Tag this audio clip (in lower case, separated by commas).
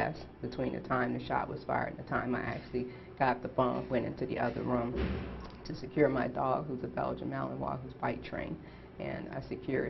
speech, inside a small room